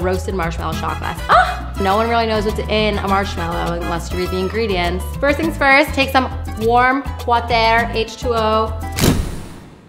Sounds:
Music, Speech

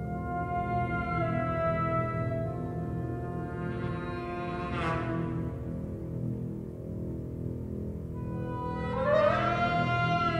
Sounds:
Music, Scary music

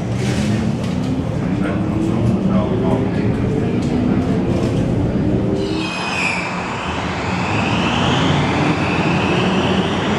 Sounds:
subway

